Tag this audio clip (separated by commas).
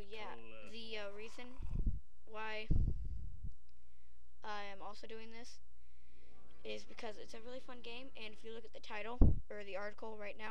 Speech